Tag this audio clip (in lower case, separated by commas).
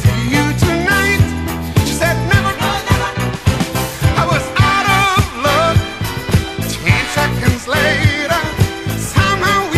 music